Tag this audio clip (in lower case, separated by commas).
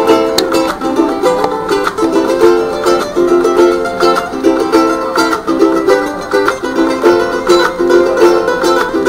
musical instrument, music, ukulele